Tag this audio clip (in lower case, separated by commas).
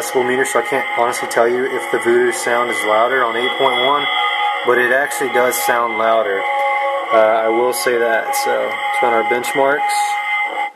speech